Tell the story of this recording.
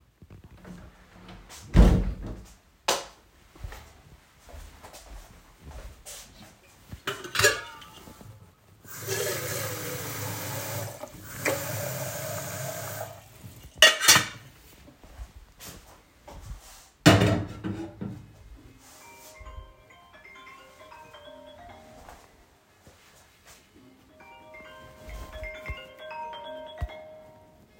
I entered the kitchen and closed the door. Desiring a coffee I took the metal kettle and filled it with water. When I have put the kettle on the stove the phone started ringing.